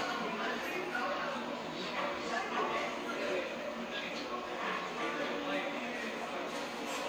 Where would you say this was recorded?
in a cafe